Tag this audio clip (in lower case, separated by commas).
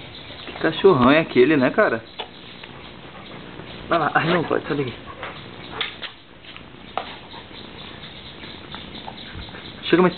animal, speech, pets, dog